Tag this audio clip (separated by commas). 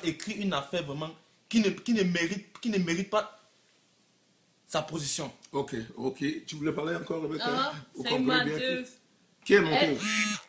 Speech, man speaking